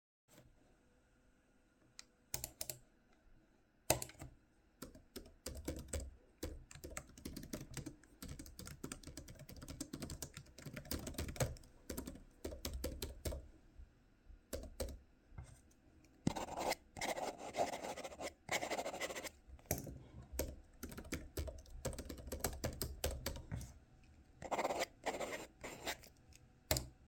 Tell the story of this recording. Opened the needed apps on my laptop. Then, I did some calculations and noted them in my notebook